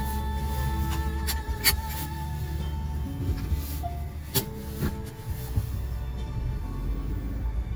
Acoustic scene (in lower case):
car